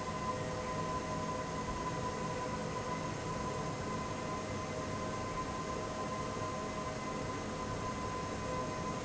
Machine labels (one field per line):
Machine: fan